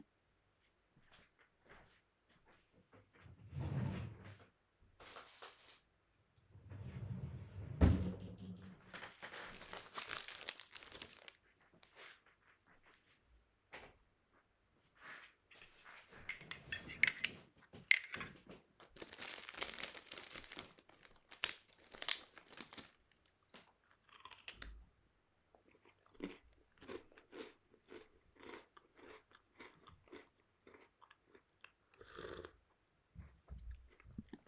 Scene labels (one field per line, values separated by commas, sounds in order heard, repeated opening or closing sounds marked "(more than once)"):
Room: bedroom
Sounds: footsteps, wardrobe or drawer (more than once)